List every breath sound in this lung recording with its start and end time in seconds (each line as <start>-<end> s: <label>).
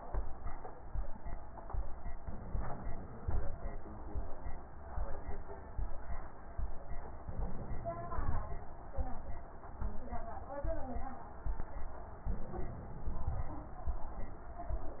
2.18-3.51 s: inhalation
2.18-3.51 s: stridor
7.24-8.57 s: inhalation
7.24-8.57 s: stridor
12.31-13.64 s: inhalation
12.31-13.64 s: stridor